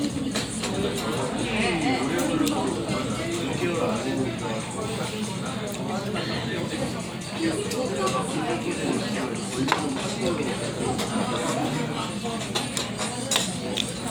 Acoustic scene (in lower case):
crowded indoor space